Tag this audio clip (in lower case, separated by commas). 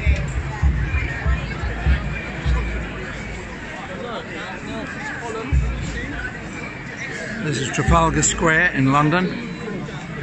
people marching